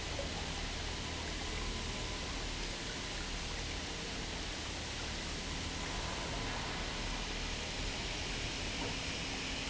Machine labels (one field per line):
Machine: pump